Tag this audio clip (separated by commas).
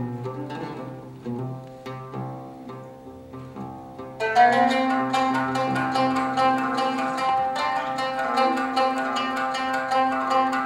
Music